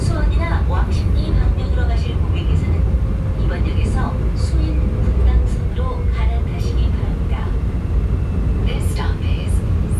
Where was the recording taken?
on a subway train